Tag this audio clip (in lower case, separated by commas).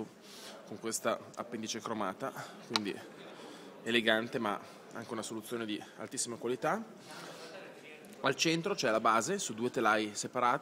speech